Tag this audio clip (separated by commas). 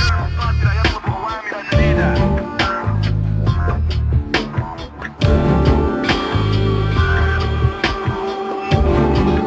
Speech, Music